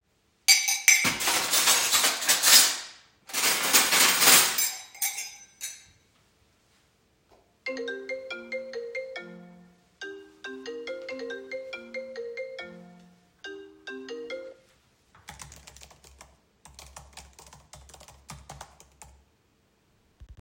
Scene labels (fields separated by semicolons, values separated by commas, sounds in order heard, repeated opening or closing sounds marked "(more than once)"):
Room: kitchen; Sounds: cutlery and dishes, phone ringing, keyboard typing